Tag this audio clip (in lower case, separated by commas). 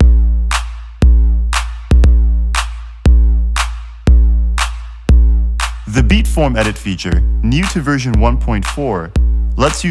speech, music